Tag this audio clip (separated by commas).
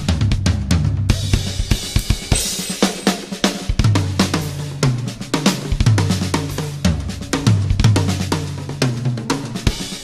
playing bass drum